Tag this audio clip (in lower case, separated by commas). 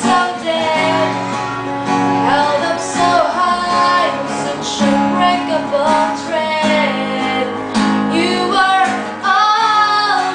music, strum, acoustic guitar, plucked string instrument, musical instrument, guitar